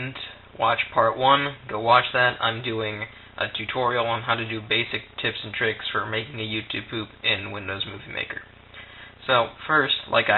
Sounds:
Speech

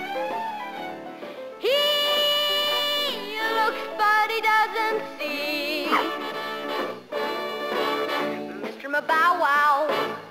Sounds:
Music

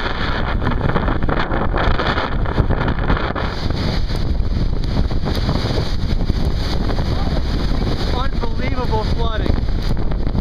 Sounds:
Speech

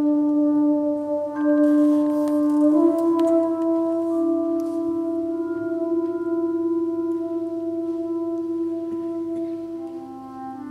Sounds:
Music, Classical music, inside a large room or hall, Orchestra

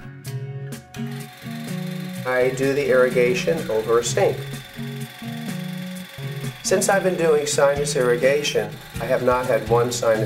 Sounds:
Music, Speech

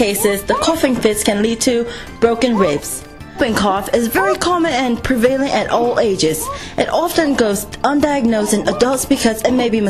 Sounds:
Speech, Music

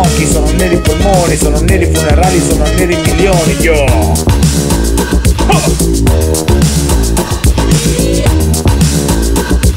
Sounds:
Music of Africa, Disco, Music

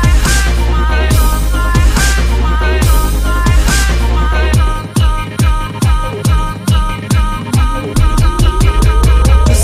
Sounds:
Dubstep, Music, Electronic music

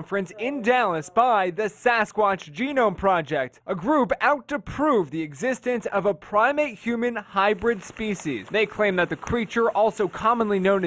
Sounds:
Speech

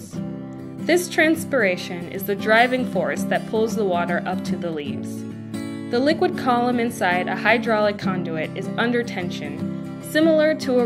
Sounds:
Music, Speech

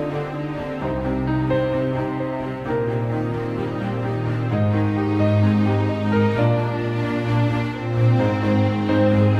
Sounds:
Music

